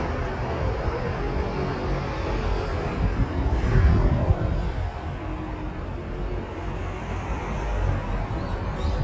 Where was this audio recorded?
on a street